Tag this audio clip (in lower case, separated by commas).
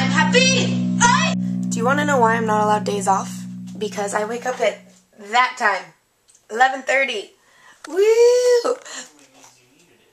speech, music